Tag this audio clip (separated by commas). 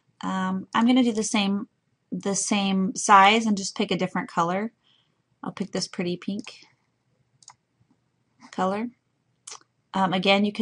Clicking, Speech